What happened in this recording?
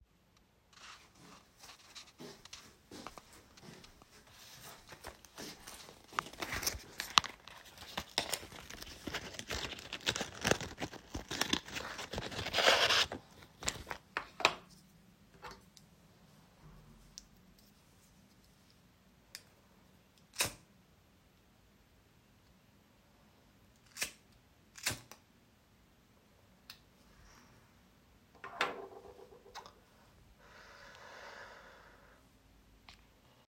I walked to the bathroom and turned on the water tap while moving around.